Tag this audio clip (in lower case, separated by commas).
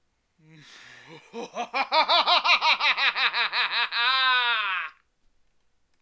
laughter, human voice